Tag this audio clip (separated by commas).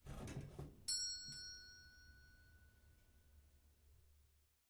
Domestic sounds, Doorbell, Door, Alarm